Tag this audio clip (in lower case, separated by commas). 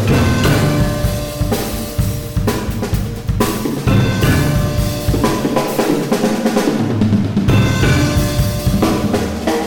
musical instrument, drum kit, music, drum